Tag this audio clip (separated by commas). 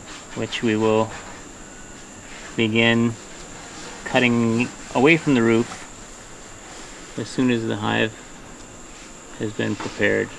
bee or wasp, Speech